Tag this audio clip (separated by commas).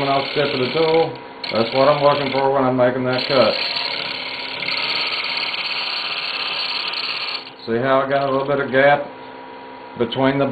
Speech, Tools